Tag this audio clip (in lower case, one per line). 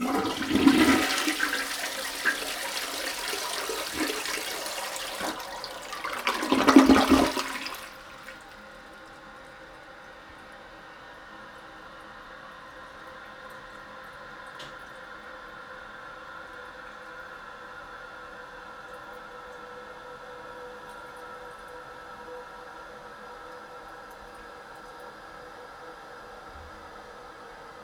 toilet flush
home sounds